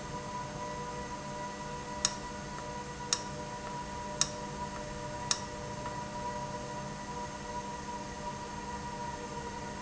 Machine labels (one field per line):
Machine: valve